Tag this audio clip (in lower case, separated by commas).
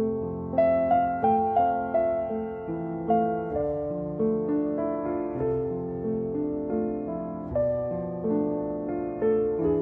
lullaby, music